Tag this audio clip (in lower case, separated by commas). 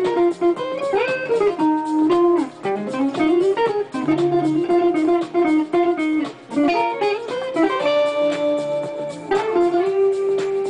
musical instrument, acoustic guitar, strum, guitar, plucked string instrument, music